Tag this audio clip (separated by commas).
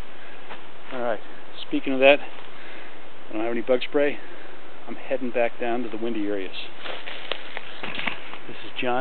Speech